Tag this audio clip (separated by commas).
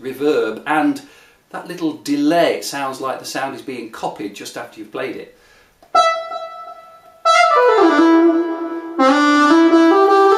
Wind instrument, Music, Speech, inside a small room